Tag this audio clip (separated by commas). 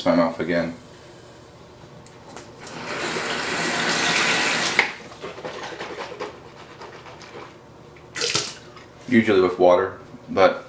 faucet, Sink (filling or washing), Water